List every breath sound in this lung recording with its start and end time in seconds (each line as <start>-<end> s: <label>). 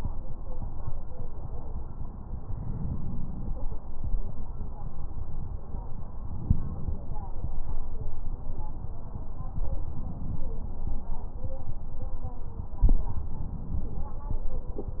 2.43-3.60 s: inhalation
6.20-7.37 s: inhalation
6.20-7.37 s: crackles
13.18-14.35 s: inhalation